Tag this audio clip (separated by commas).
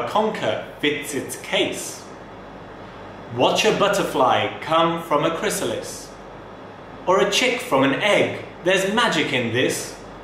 monologue, Male speech, Speech